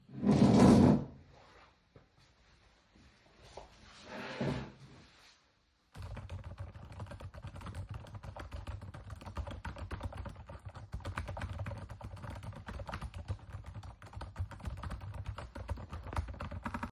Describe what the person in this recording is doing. I entered the room and moved the chair aside. I pulled the chair back ,sat at the desk and started typing